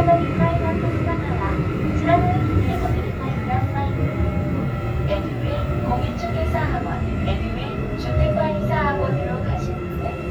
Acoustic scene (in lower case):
subway train